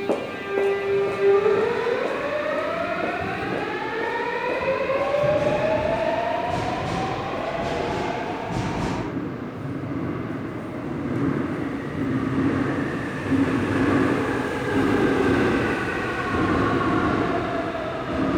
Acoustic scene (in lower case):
subway station